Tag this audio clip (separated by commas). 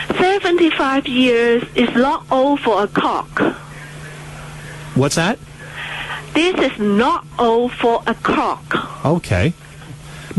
Speech